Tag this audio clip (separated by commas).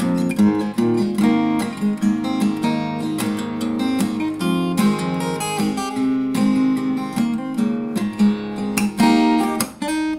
Music